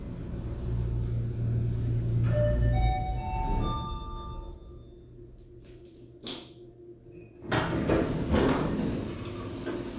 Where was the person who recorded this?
in an elevator